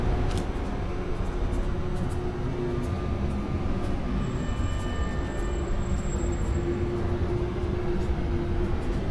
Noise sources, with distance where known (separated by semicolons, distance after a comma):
engine of unclear size